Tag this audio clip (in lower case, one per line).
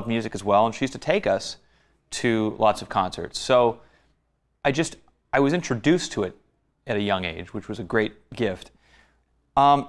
speech